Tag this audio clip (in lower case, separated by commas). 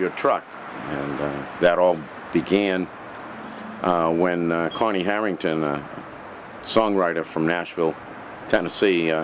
speech